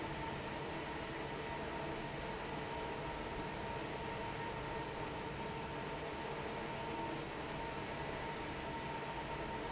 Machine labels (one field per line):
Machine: fan